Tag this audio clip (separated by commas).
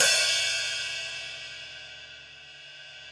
Musical instrument, Music, Percussion, Hi-hat, Cymbal